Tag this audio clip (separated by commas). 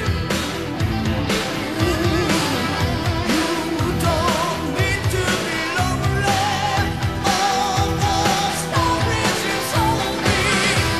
Music